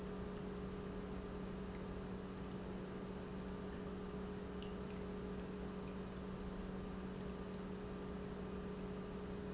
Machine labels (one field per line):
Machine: pump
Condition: normal